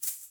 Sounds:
musical instrument
music
percussion
rattle (instrument)

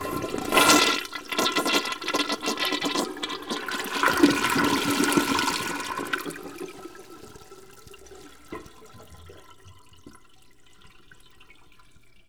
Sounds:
water
toilet flush
gurgling
domestic sounds

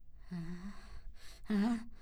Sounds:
human voice
respiratory sounds
breathing

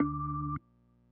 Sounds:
musical instrument
keyboard (musical)
organ
music

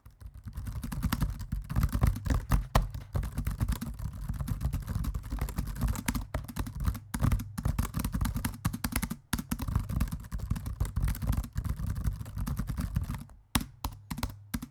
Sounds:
home sounds
typing
computer keyboard

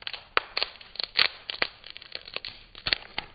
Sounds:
wood

